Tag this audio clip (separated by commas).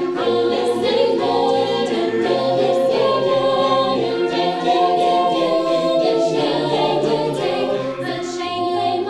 A capella, Singing, Music